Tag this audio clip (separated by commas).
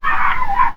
Animal, Dog, Domestic animals